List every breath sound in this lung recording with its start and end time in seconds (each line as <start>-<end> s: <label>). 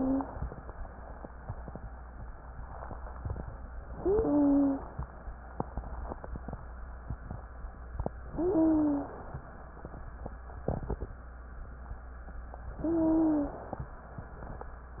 3.92-4.78 s: wheeze
3.92-5.00 s: inhalation
8.29-9.16 s: wheeze
8.31-9.40 s: inhalation
12.77-13.63 s: wheeze
12.77-13.85 s: inhalation